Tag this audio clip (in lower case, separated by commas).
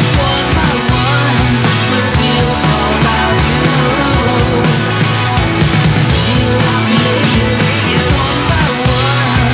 singing, music